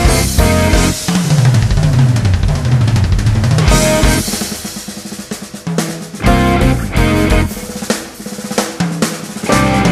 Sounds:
bass drum, drum roll, snare drum, drum kit, percussion, rimshot, drum

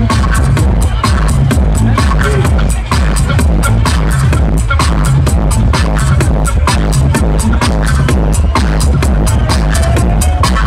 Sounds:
music, techno

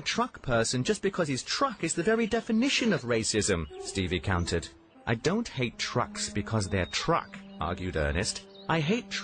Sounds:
speech

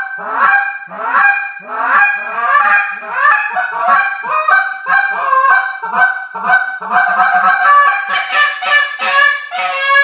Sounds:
honk

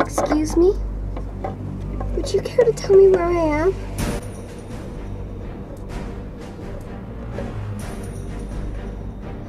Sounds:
speech, music

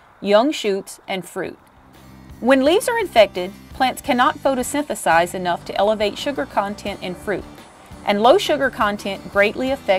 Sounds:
speech, music

